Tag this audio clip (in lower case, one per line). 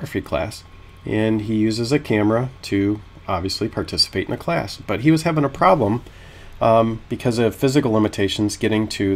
speech